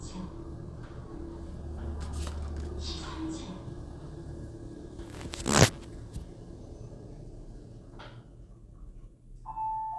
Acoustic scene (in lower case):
elevator